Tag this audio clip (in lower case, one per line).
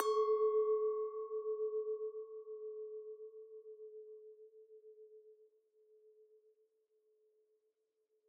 glass
chink